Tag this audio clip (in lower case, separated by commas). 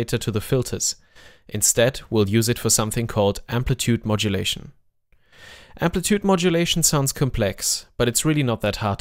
speech